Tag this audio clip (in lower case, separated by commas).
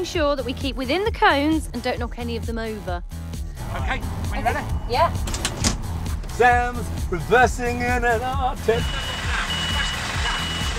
truck, music, speech, vehicle